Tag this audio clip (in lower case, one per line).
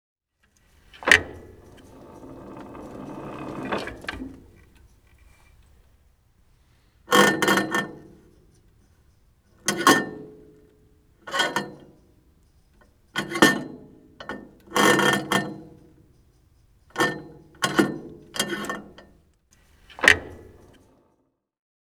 thump